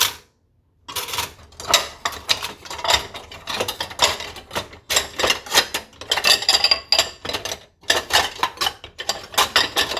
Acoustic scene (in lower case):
kitchen